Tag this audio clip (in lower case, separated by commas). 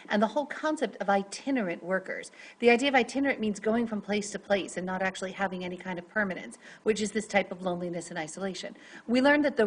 speech